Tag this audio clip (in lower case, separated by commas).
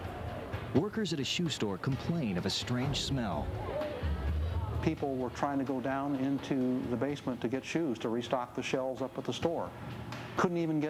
music, speech